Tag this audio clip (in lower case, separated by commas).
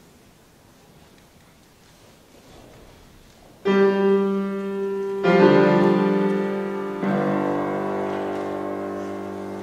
musical instrument, music